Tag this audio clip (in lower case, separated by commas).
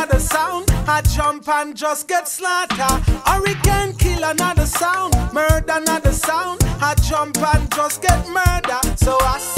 field recording, music